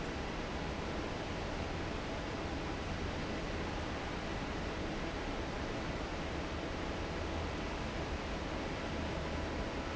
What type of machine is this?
fan